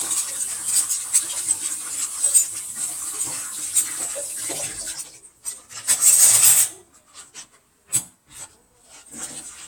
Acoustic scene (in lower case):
kitchen